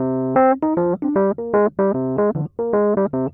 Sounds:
Music, Musical instrument, Piano, Keyboard (musical)

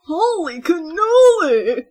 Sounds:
Human voice, woman speaking, Speech

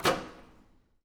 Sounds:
home sounds, Microwave oven

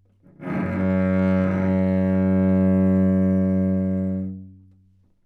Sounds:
Music, Musical instrument, Bowed string instrument

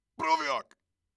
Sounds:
man speaking, Human voice, Speech

